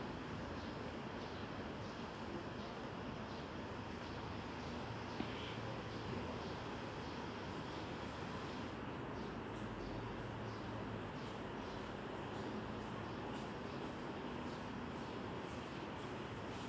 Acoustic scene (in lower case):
residential area